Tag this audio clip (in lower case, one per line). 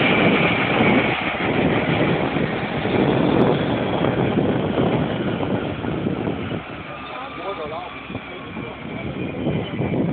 airplane
speech
vehicle
aircraft